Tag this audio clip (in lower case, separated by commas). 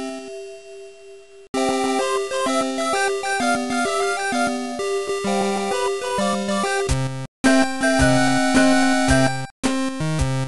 soundtrack music, music, video game music